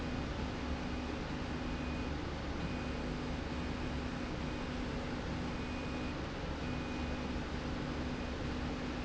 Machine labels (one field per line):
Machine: slide rail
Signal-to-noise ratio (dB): -6 dB